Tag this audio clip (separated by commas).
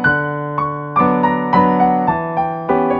Piano, Musical instrument, Keyboard (musical), Music